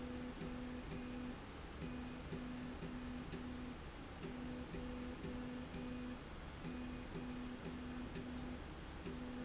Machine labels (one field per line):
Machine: slide rail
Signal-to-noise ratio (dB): 6 dB